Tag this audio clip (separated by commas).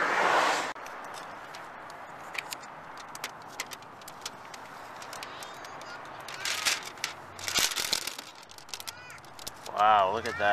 Speech, Vehicle, Car, Crackle